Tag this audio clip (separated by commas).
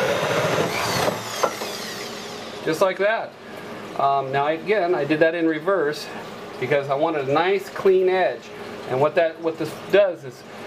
Speech, inside a small room